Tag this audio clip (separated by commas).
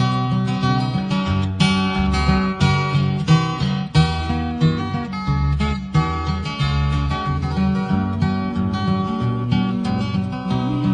Music